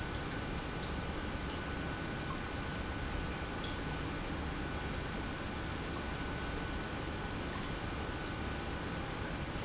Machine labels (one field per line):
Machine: pump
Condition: normal